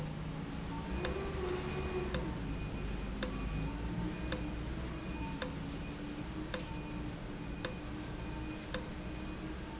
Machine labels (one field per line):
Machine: valve